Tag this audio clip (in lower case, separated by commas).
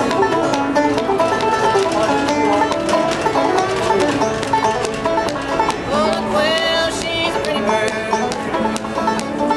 music